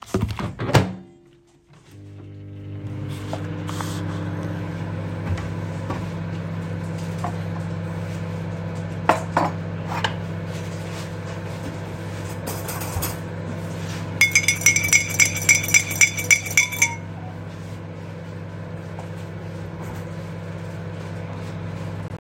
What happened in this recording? I warmed my food in the microwave and stired my tea